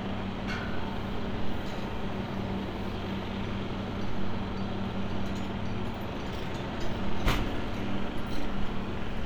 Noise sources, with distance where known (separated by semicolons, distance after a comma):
unidentified impact machinery, far